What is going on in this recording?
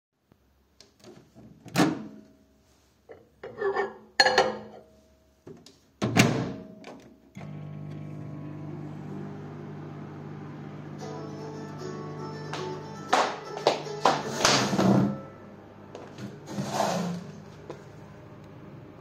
I am opening microwave and putting there some food, then closing and starting it. While it is working, my phone rang, so I went to take it. While I was walking, I accidentally stumbled into the chair.